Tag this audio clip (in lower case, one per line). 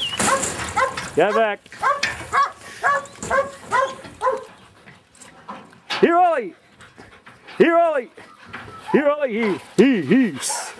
speech
whimper (dog)
bow-wow
pets
animal
dog